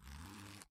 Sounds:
Zipper (clothing), home sounds

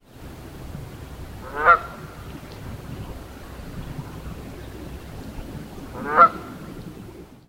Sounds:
livestock, Fowl, Animal

